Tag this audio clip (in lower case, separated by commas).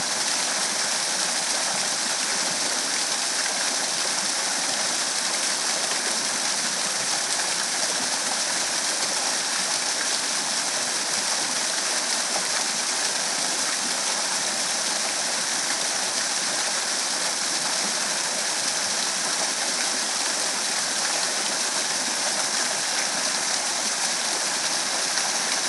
water